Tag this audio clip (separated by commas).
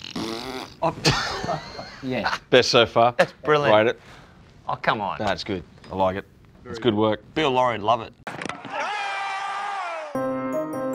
Speech